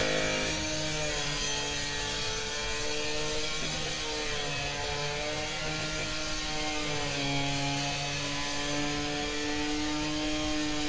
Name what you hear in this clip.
large rotating saw